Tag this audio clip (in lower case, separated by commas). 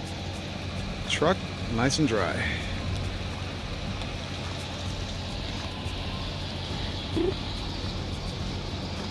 car, vehicle, speech, outside, rural or natural